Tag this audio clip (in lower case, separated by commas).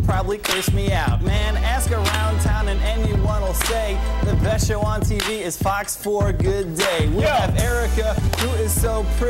rapping